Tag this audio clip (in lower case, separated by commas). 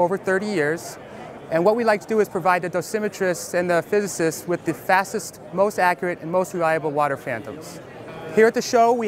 speech